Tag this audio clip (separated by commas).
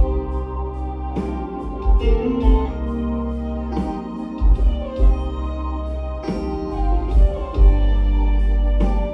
inside a large room or hall, Music